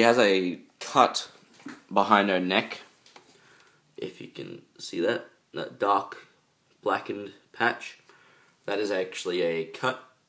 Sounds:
speech

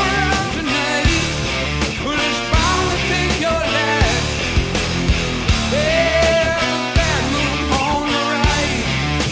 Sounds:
singing, music

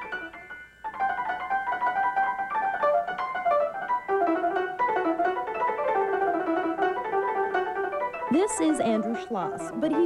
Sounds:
musical instrument, speech, music

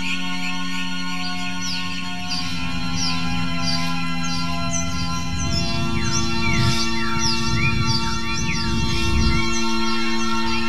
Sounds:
music, musical instrument

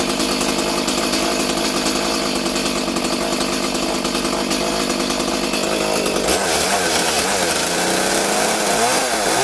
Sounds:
chainsaw

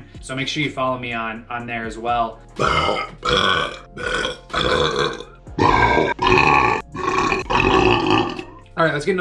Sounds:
people burping

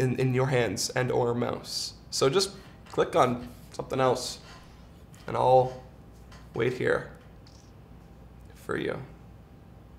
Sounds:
speech

